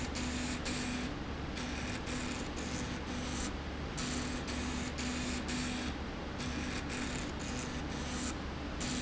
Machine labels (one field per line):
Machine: slide rail